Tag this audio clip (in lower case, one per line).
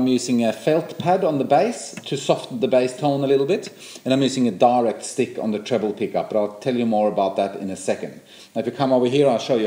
speech